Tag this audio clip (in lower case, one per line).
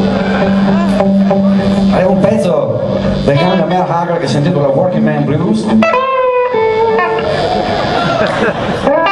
strum
speech
plucked string instrument
music
musical instrument
guitar
blues